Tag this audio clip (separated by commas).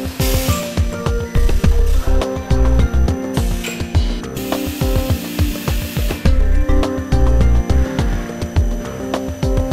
Spray, Music